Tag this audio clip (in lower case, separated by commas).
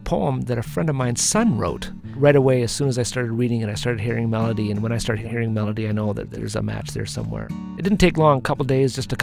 speech, music